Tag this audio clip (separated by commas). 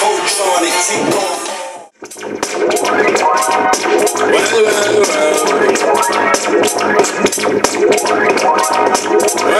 Music